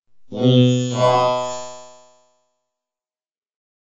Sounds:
Speech, Human voice, Speech synthesizer

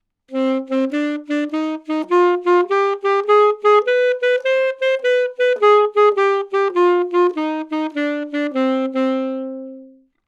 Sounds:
Wind instrument, Musical instrument, Music

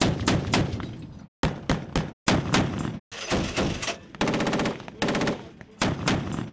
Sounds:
Gunshot, Explosion

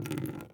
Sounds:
Water, Liquid, Drip

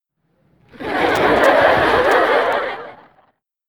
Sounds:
Human voice, Laughter, chortle

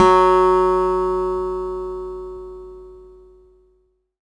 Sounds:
Acoustic guitar, Musical instrument, Music, Plucked string instrument, Guitar

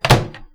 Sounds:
Domestic sounds, Microwave oven

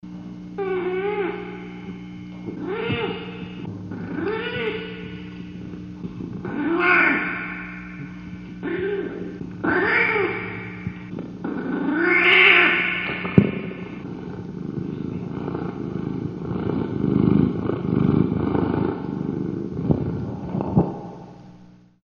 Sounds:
Purr, Animal, Cat, Meow, Domestic animals

